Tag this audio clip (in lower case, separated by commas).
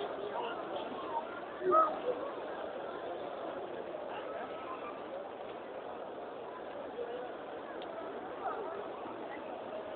speech